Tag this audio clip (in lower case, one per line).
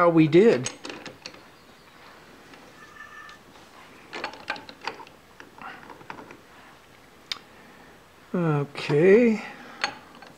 speech